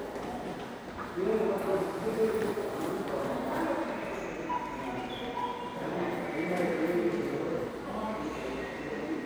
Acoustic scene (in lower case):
subway station